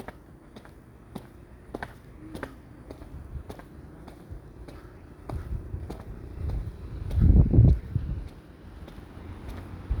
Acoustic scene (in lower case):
residential area